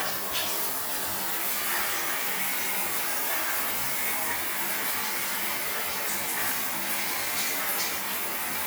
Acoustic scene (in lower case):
restroom